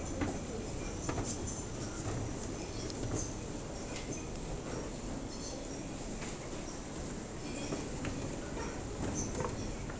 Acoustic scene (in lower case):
crowded indoor space